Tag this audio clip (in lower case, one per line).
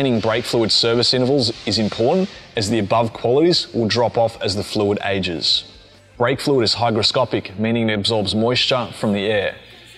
speech